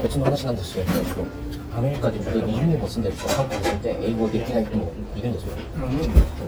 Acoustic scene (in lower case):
restaurant